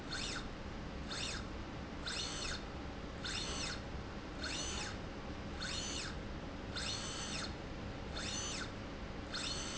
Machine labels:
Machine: slide rail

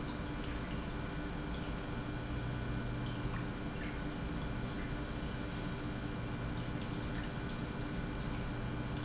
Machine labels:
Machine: pump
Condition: normal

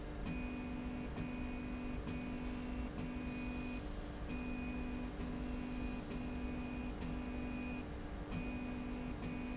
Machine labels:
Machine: slide rail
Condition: normal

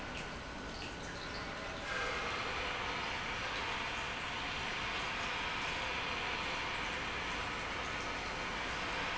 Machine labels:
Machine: pump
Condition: normal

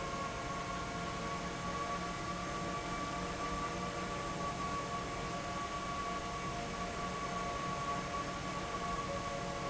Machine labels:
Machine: fan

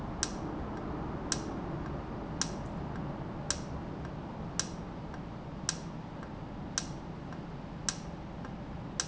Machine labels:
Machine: valve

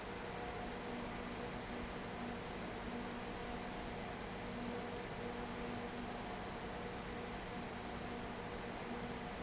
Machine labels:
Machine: fan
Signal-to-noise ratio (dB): 6 dB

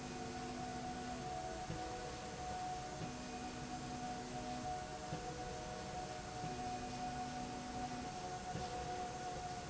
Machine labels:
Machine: slide rail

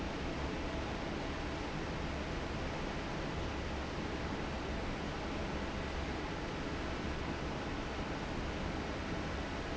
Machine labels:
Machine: fan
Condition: normal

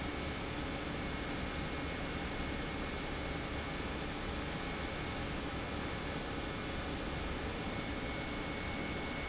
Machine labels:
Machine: pump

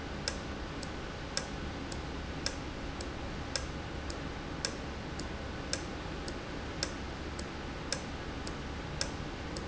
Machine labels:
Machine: valve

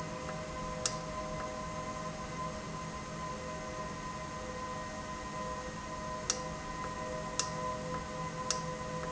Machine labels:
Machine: valve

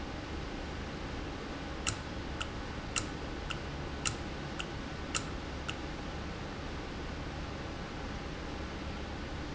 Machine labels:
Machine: valve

